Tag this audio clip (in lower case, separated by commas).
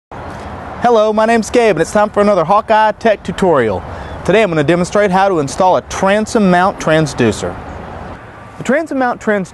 speech